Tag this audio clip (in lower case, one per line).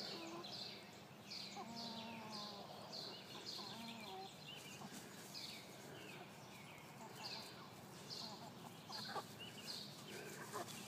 fowl
cluck
chicken